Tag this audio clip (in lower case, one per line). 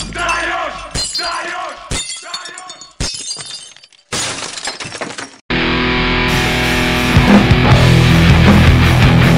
rock music
music
shatter
heavy metal